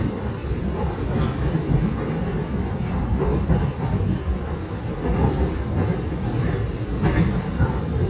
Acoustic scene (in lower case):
subway train